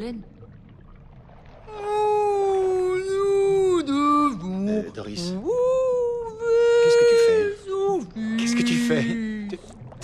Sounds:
whale calling

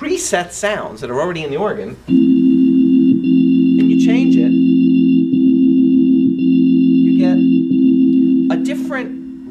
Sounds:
Hammond organ, Organ

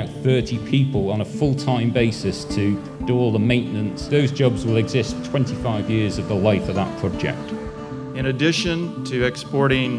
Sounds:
Music, Speech

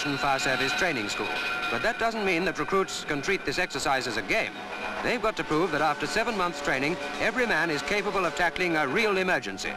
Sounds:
fire truck (siren), Speech

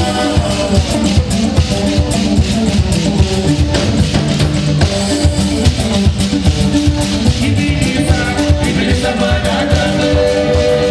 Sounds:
Music

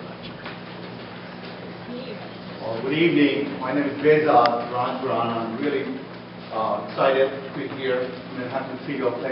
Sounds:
inside a large room or hall, Speech

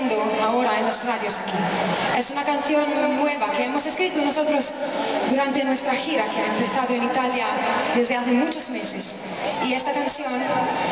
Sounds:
Speech

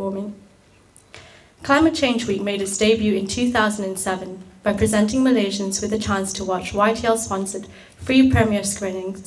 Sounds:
Speech, Narration, woman speaking

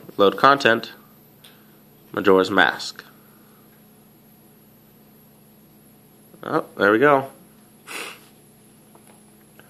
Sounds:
Speech, inside a small room

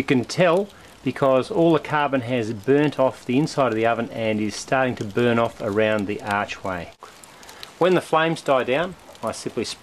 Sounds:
Speech

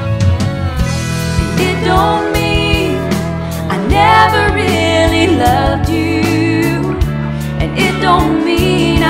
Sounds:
Singing, Music

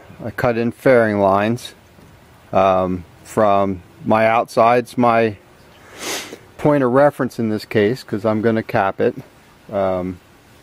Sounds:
Speech

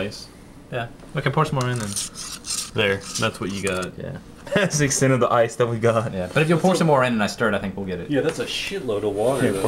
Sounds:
Stir

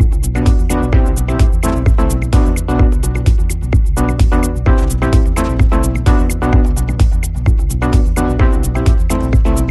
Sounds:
Music

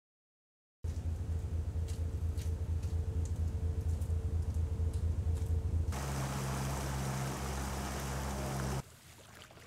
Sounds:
Ocean

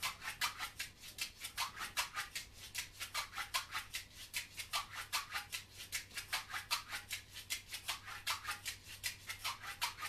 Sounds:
Music, Percussion

